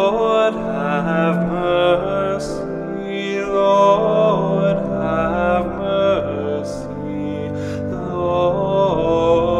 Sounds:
Music

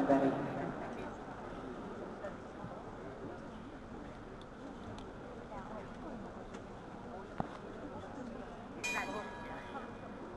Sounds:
Speech

